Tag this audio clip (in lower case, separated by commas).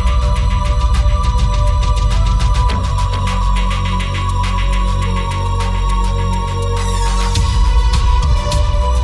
music, electronic music